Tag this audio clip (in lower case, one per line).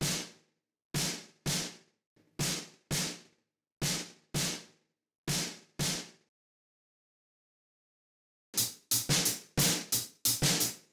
playing snare drum